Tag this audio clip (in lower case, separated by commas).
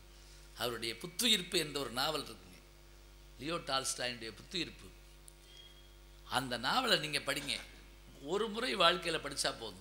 speech, narration, man speaking